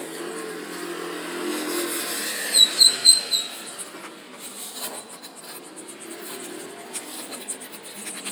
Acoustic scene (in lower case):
residential area